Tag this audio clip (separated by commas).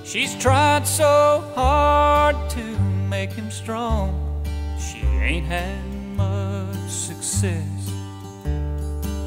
Music